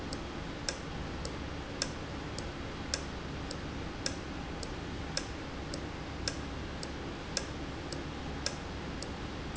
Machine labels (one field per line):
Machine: valve